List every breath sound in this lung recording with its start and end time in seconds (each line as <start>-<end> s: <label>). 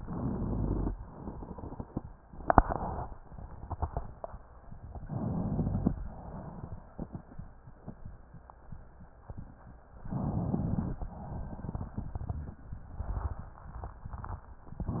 0.87-1.99 s: exhalation
0.87-1.99 s: crackles
5.03-6.03 s: crackles
5.04-6.03 s: inhalation
6.02-7.61 s: exhalation
10.05-11.02 s: inhalation
11.03-12.57 s: exhalation
11.03-12.57 s: crackles